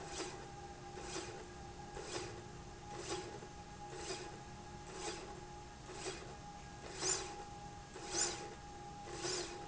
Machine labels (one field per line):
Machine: slide rail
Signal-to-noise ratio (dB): 6 dB